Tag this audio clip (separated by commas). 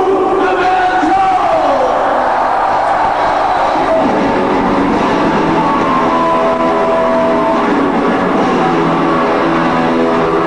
Music, Speech